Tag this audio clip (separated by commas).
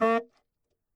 Music, Wind instrument, Musical instrument